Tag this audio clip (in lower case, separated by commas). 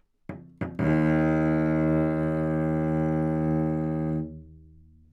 bowed string instrument, musical instrument, music